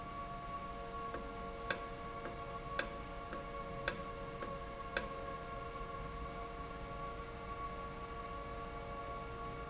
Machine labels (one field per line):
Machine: valve